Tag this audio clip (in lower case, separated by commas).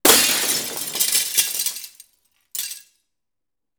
glass, shatter